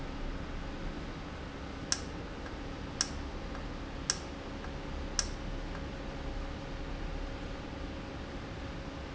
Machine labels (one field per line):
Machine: valve